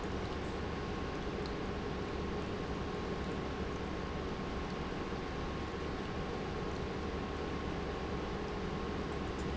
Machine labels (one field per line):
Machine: pump